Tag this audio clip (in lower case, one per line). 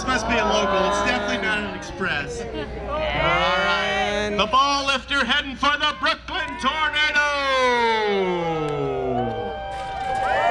speech